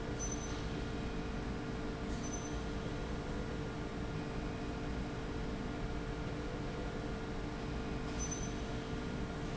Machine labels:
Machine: slide rail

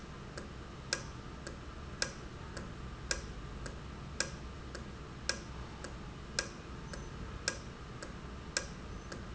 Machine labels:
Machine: valve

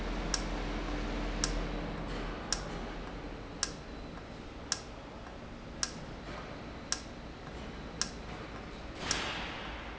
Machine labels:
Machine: valve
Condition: normal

